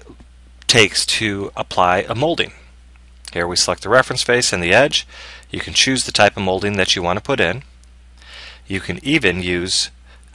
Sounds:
Speech

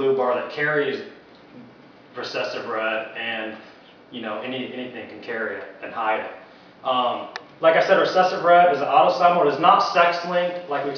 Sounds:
Speech

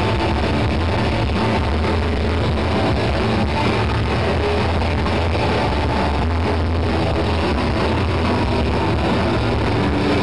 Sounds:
Plucked string instrument, Electric guitar, Music, Musical instrument, Acoustic guitar, Strum, Guitar

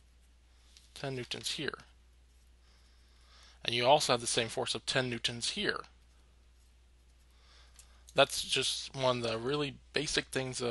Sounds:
Speech

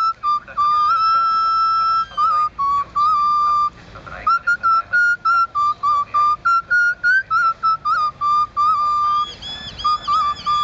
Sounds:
Speech, Music

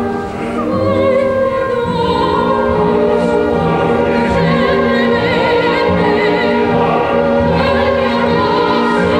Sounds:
Music, Opera

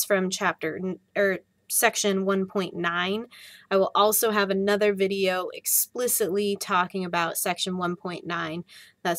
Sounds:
Speech

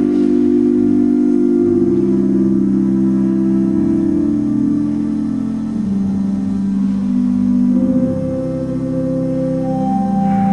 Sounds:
Musical instrument, Music

